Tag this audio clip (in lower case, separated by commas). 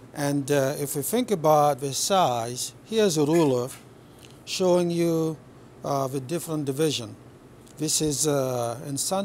speech